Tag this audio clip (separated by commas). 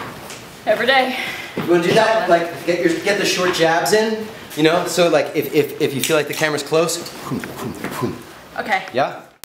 Speech